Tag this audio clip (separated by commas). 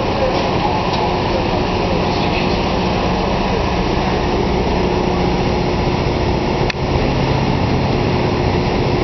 Vehicle, Boat